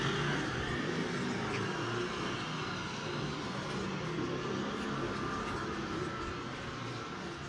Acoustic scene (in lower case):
residential area